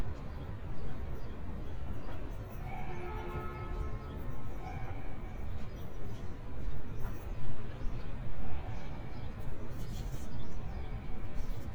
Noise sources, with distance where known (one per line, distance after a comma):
car horn, far